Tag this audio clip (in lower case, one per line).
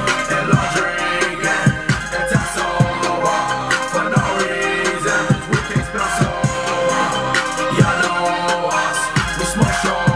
music